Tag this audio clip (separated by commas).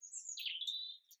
Animal, Bird, Wild animals